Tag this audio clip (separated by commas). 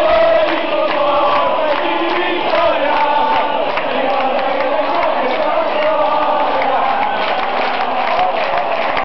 Speech